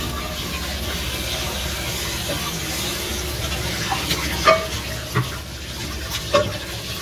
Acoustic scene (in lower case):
kitchen